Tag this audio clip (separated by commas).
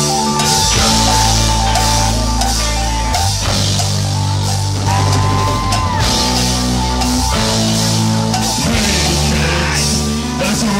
Rock and roll, Music